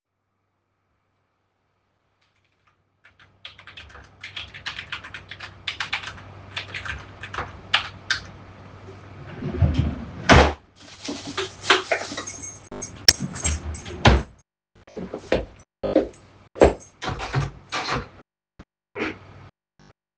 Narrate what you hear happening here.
I typed on the keyboard, opened the desk drawer, made noise with the plastic bag in the drawer while looking for the keys, closed the drawer, walked towards the door while dangling the keychain, and opened the door.